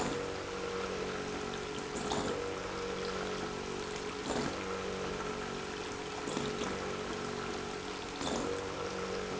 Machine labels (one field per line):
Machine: pump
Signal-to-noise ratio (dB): 6 dB